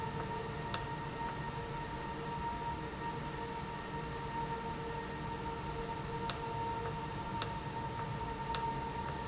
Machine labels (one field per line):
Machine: valve